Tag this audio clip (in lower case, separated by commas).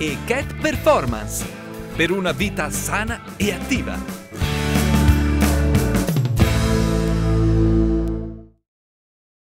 speech, music